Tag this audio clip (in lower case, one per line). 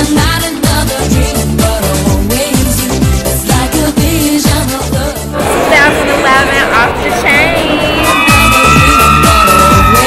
speech
music
music of asia